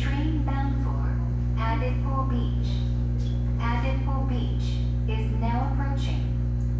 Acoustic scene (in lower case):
subway station